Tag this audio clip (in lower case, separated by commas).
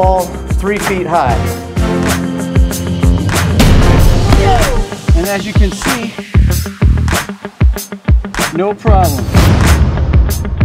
speech, music